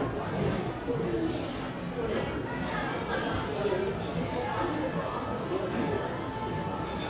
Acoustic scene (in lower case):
cafe